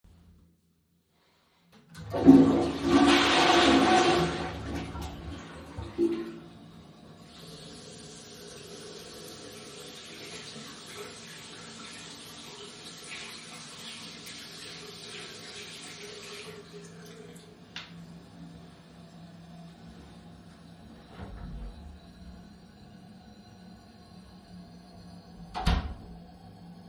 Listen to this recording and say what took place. I flushed the toilet and washed my hands afterwards, dried my hands before leaving the designated toilet room.